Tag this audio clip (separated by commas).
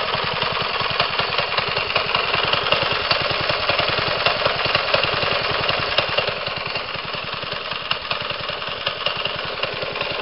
Motorcycle, Engine, outside, urban or man-made, Vehicle